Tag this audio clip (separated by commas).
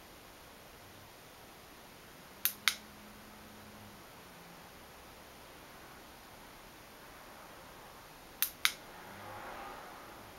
Vehicle